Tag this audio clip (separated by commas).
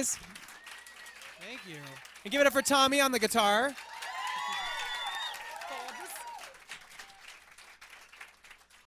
Speech